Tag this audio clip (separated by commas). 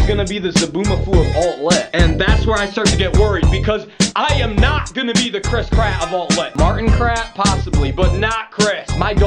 Music, Speech